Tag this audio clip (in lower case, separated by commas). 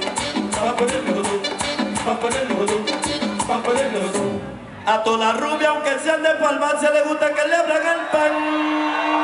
music